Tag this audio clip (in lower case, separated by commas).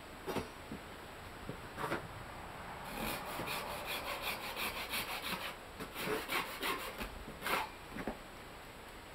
wood